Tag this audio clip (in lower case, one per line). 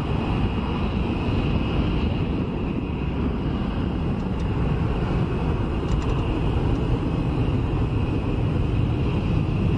tornado roaring